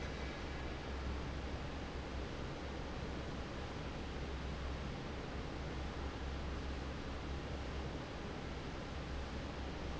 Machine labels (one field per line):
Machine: fan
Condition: normal